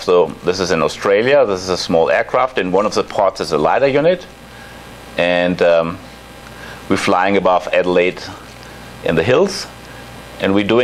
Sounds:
speech

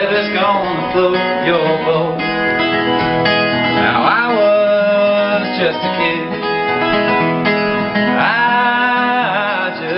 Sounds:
music

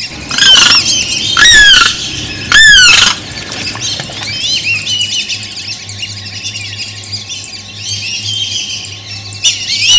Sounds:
bird squawking
bird
outside, rural or natural
squawk

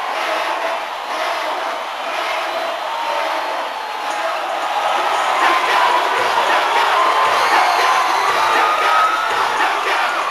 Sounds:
music

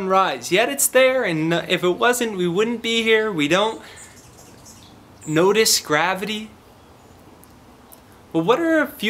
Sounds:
speech

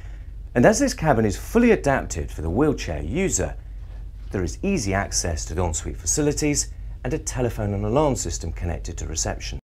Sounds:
speech

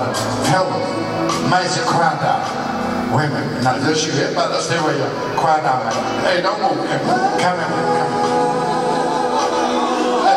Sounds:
music
singing
gospel music

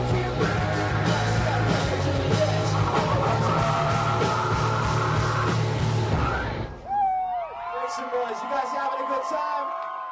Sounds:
music

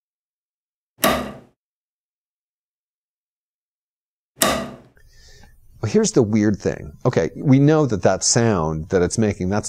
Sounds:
speech

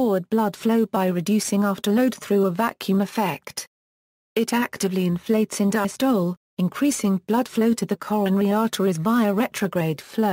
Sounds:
speech

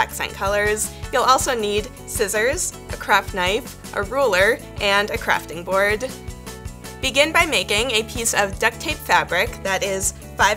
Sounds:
music
speech

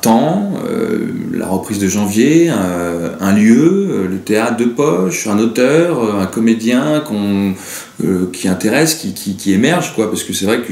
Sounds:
speech

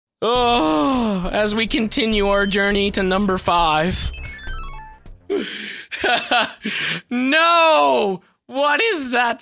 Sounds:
music
speech
inside a small room

